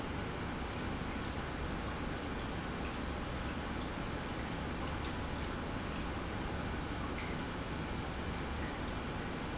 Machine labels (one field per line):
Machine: pump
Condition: normal